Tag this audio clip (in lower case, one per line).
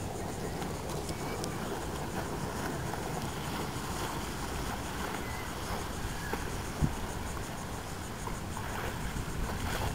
speedboat
boat
speedboat acceleration
outside, rural or natural
vehicle